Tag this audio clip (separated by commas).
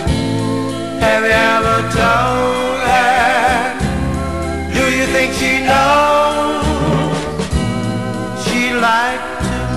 Country, Music